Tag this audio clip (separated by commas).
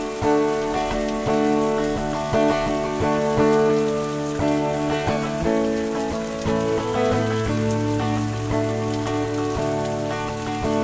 Rain on surface, Music